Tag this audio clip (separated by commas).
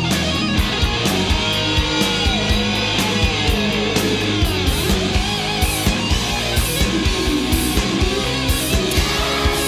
Singing, Punk rock